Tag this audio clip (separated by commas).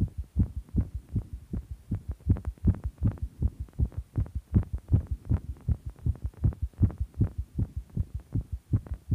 Heart sounds